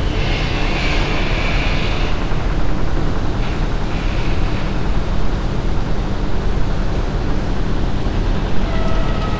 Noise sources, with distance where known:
engine of unclear size

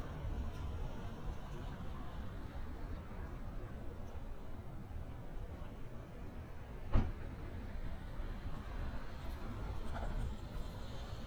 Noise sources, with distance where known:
medium-sounding engine; non-machinery impact

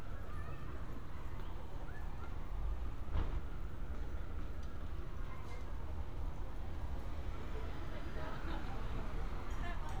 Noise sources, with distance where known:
person or small group talking

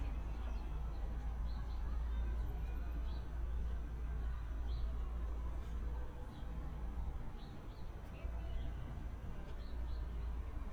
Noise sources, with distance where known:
person or small group talking, far

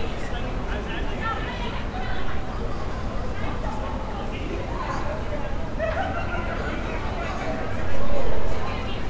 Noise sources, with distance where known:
person or small group talking, near

